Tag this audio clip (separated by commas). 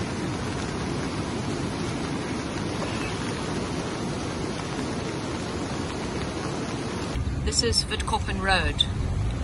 raining